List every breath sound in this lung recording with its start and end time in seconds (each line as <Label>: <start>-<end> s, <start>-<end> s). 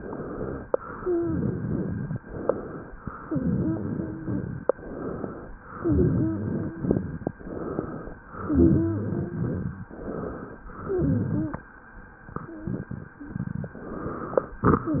Inhalation: 0.00-0.67 s, 2.22-2.98 s, 4.76-5.52 s, 7.42-8.18 s, 9.90-10.66 s, 13.78-14.61 s
Exhalation: 0.70-2.20 s, 3.23-4.73 s, 5.77-7.27 s, 8.43-9.93 s, 10.76-11.71 s
Wheeze: 0.70-2.20 s, 3.23-4.73 s, 5.77-7.27 s, 8.43-9.93 s, 10.76-11.71 s